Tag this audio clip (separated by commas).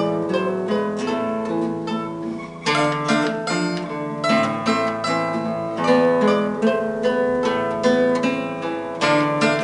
playing mandolin